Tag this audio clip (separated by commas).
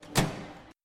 Microwave oven, home sounds